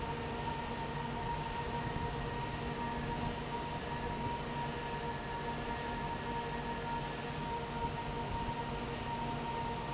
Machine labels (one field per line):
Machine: fan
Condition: abnormal